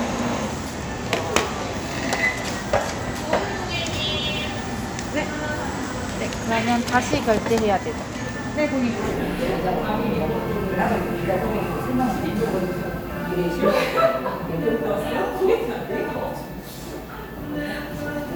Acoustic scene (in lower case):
crowded indoor space